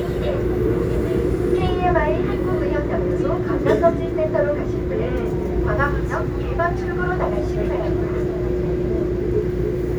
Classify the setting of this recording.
subway train